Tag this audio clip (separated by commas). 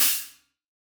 Hi-hat, Musical instrument, Percussion, Music, Cymbal